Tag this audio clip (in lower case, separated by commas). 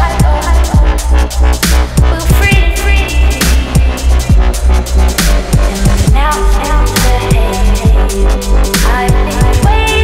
music, drum and bass